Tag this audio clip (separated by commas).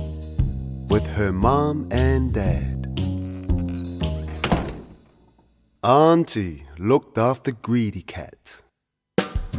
Music, Speech